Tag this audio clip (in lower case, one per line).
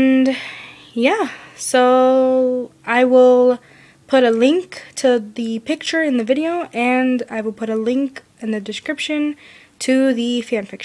speech